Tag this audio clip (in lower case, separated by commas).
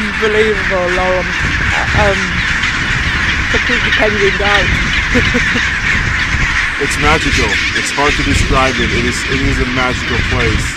outside, rural or natural, bird, speech, goose